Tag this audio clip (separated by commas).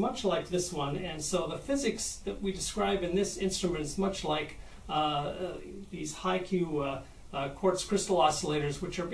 Speech